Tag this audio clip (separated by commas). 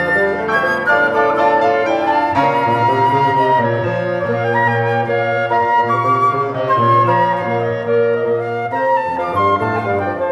Music, Classical music